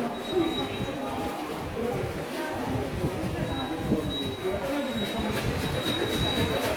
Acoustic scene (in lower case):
subway station